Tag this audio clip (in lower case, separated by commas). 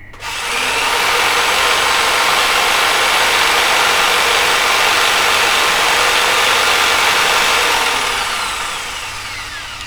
tools, power tool, drill